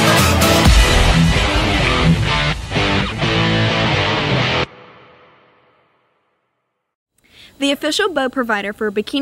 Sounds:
Speech, Music

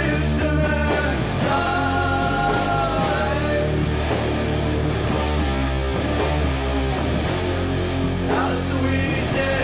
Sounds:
Music

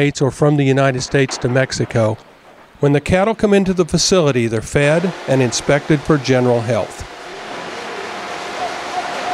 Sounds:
Speech

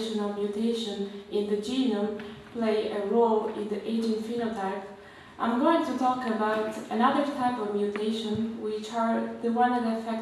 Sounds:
Speech

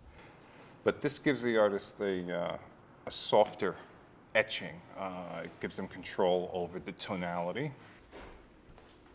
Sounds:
Speech

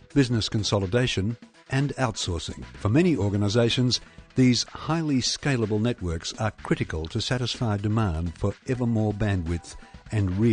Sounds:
Music, Speech

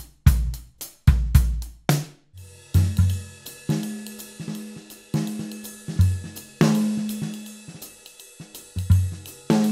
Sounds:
playing bass drum

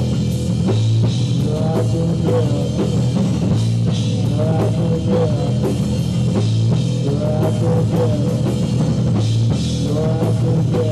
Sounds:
Music, Rock music

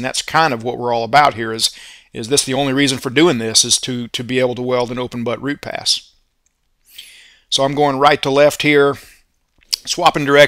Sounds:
arc welding

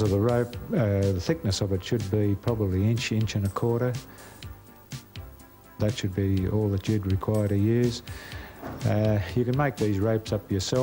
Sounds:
Music, Speech

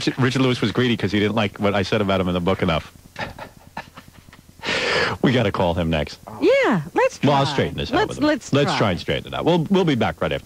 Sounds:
Speech

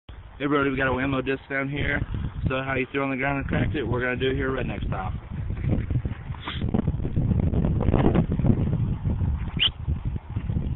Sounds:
outside, rural or natural, Speech

